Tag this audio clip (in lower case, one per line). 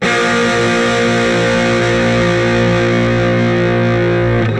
music
guitar
musical instrument
plucked string instrument
electric guitar